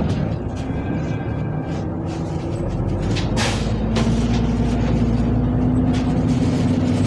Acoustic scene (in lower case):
bus